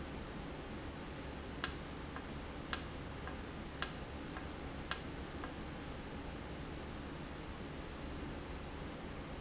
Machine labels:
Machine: valve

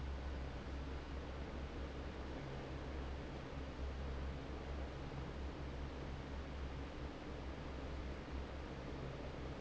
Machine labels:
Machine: fan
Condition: normal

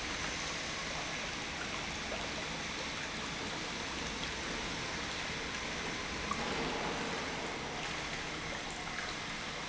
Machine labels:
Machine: pump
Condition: normal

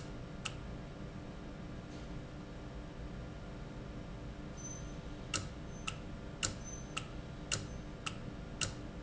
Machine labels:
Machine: valve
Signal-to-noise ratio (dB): 0 dB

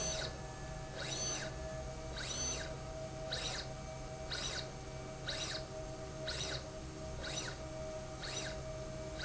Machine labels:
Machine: slide rail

